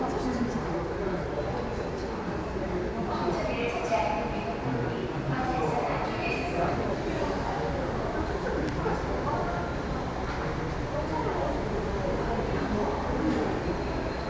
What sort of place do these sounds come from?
subway station